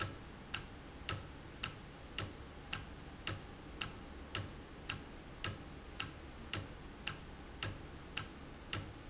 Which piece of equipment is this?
valve